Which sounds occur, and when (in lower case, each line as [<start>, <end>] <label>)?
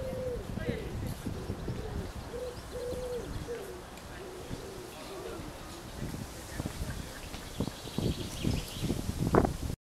[0.00, 0.39] coo
[0.00, 1.09] wind noise (microphone)
[0.00, 9.71] wind
[0.55, 0.90] coo
[0.55, 0.93] speech
[1.22, 2.33] wind noise (microphone)
[1.28, 2.01] coo
[1.28, 2.03] bird vocalization
[2.19, 3.50] bird vocalization
[2.29, 2.51] coo
[2.49, 3.46] wind noise (microphone)
[2.67, 3.27] coo
[3.44, 3.84] coo
[3.89, 4.00] tick
[4.01, 4.25] human voice
[4.16, 4.87] coo
[4.42, 4.61] wind noise (microphone)
[4.92, 5.45] speech
[5.00, 5.82] coo
[5.24, 5.50] wind noise (microphone)
[5.92, 6.24] wind noise (microphone)
[6.28, 7.20] speech
[6.47, 7.03] wind noise (microphone)
[7.28, 7.39] tick
[7.48, 8.92] bird vocalization
[7.55, 7.72] wind noise (microphone)
[7.83, 8.56] wind noise (microphone)
[8.71, 9.71] wind noise (microphone)